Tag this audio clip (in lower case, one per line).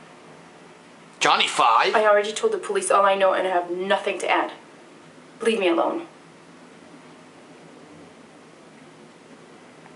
speech